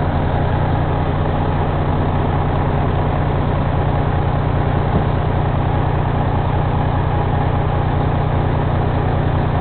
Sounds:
Vehicle, Truck

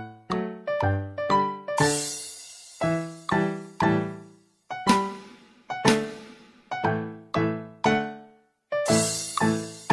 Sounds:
Music

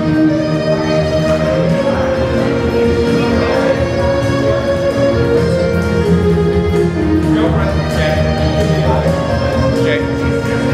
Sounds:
Music, Speech

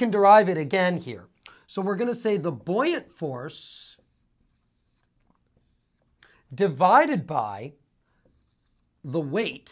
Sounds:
Writing

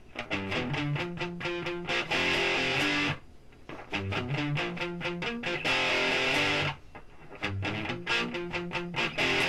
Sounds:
Musical instrument, Guitar, Acoustic guitar, Music

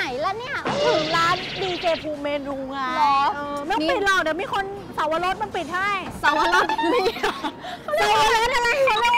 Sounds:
Speech, Music

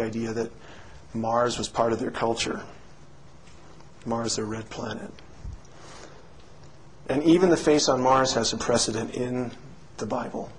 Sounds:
Speech

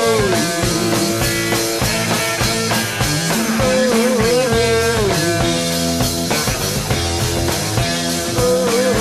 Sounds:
Psychedelic rock, Music

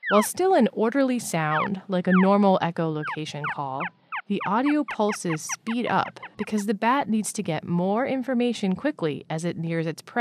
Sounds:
Speech

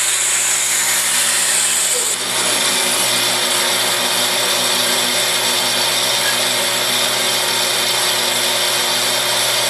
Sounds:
Power tool, Tools

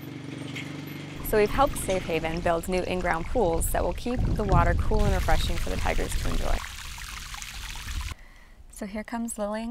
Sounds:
Speech, Pour

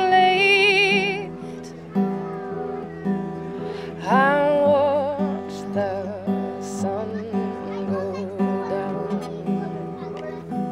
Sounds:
Speech, Music

